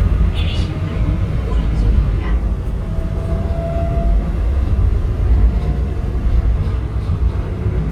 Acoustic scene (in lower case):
subway train